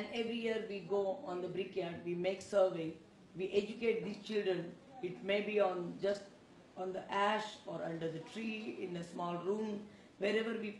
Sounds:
woman speaking
speech

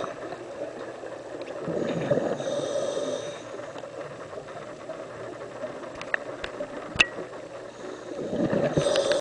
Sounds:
outside, rural or natural
snake
hiss

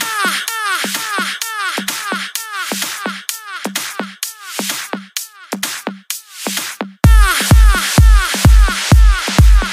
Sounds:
music
electronic dance music
hip hop music

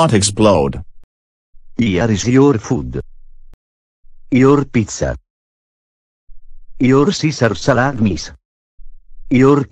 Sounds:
speech

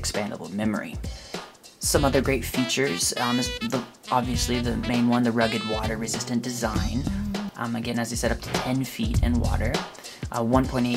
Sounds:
music
speech

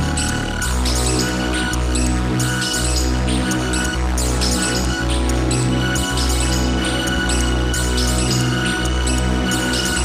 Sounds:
music

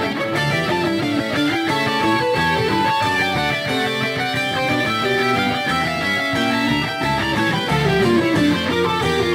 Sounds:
acoustic guitar
plucked string instrument
musical instrument
guitar
music

